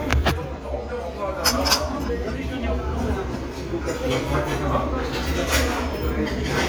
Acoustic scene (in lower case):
restaurant